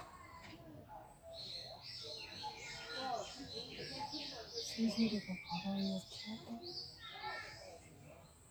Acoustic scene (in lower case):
park